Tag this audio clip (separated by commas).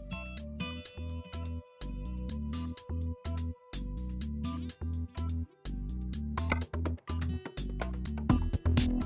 Music